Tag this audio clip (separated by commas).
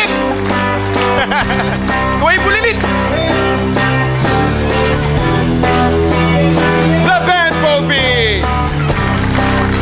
Male singing, Music, Speech